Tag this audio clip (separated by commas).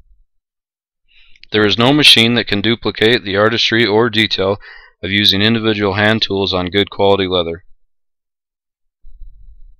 Speech